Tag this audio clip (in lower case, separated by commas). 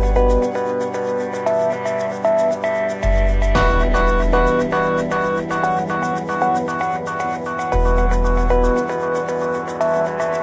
music